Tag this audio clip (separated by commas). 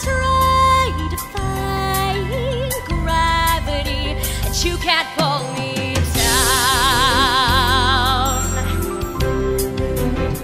Singing, Music